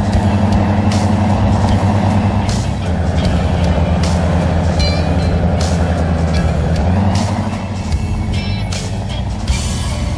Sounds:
truck, music

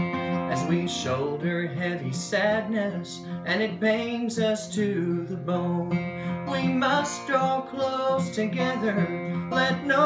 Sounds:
music, guitar, plucked string instrument, musical instrument

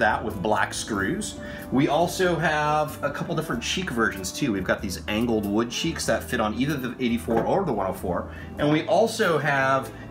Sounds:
speech, music

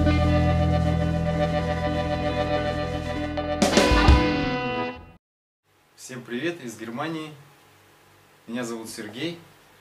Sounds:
speech, music

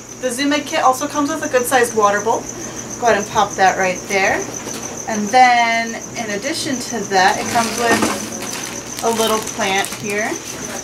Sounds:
animal, speech

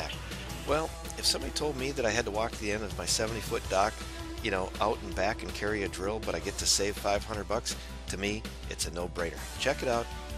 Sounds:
music, speech

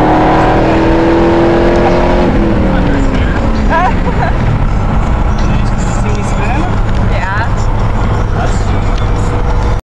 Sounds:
speech, car, music, vehicle

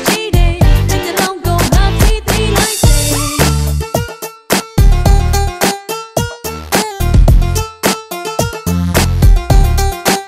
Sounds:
music, singing, inside a large room or hall

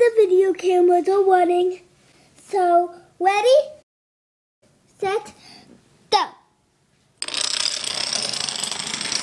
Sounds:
inside a small room, speech

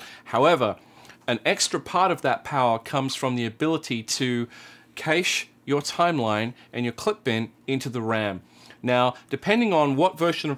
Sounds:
speech

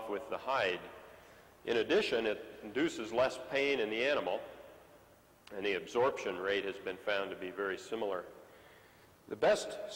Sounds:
speech

